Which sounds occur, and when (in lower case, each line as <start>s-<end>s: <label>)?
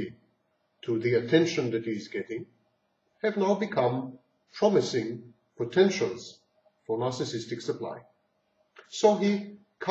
0.0s-0.2s: man speaking
0.0s-9.9s: background noise
0.8s-2.4s: man speaking
3.2s-4.1s: man speaking
4.4s-5.3s: man speaking
5.5s-6.4s: man speaking
6.8s-8.1s: man speaking
8.7s-9.6s: man speaking
9.8s-9.9s: man speaking